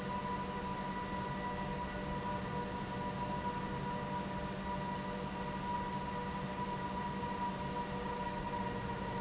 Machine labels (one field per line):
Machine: pump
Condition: normal